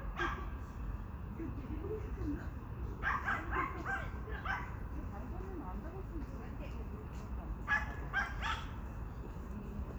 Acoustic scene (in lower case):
park